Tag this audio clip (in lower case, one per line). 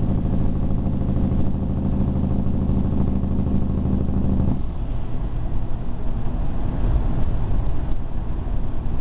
outside, urban or man-made